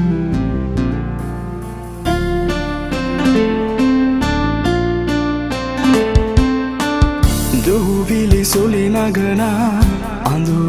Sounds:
soundtrack music, music

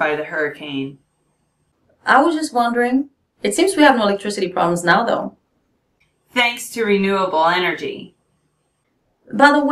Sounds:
speech

